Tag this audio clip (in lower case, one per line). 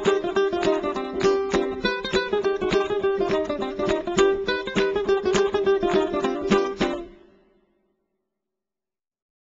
musical instrument
music